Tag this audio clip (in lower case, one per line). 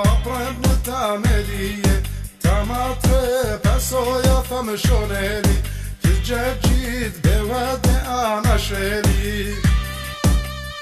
music